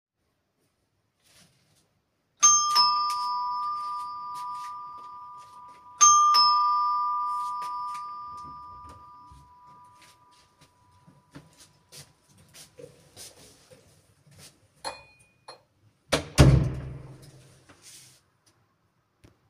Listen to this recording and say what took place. The doorbell rang. I walked to the door. I opened the dorr, and I closed it back.